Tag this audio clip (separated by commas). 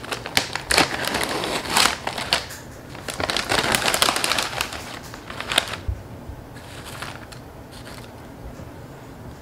people eating crisps